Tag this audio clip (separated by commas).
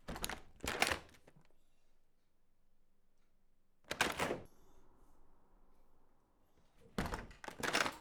Wood, Slam, Domestic sounds, Door